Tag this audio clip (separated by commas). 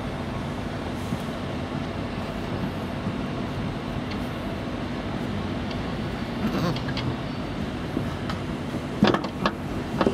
Bleat, Animal